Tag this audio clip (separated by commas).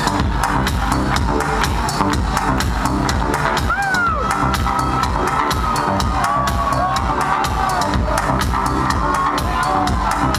Cheering, Music, Sound effect